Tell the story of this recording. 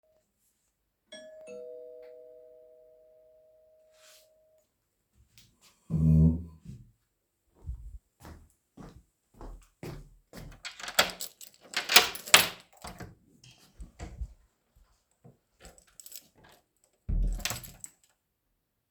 The doorbell rang. I moved back with the chair, I walked to the door and turned the key. I opened the door.